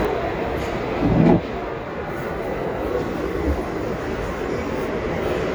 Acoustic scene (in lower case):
crowded indoor space